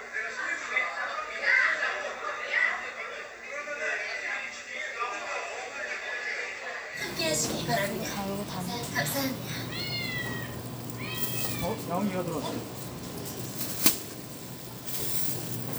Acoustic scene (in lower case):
crowded indoor space